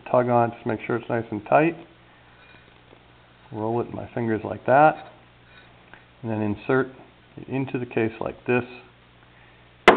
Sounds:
Speech, inside a small room

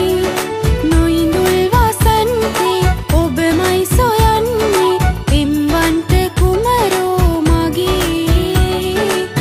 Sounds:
Folk music, Soundtrack music, Music

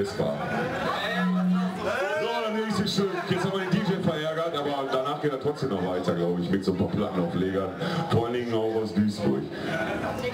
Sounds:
Speech

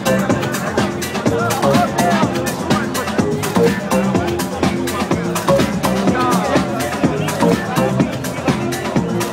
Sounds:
Music

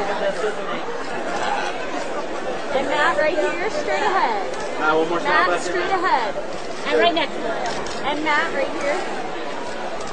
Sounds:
Speech, Chatter

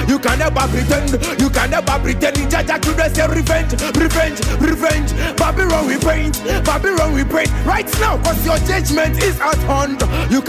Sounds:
Music

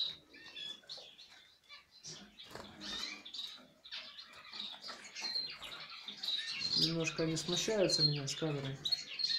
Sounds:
canary calling

